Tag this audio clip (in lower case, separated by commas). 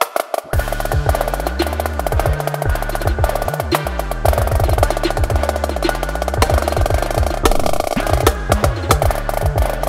playing snare drum